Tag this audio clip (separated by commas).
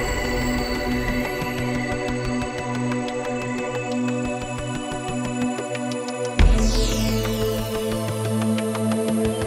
Music, Theremin